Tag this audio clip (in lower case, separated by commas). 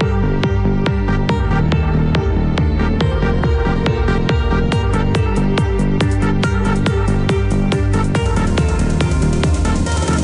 music